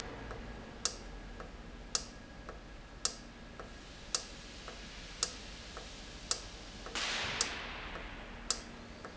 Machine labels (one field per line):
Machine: valve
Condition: normal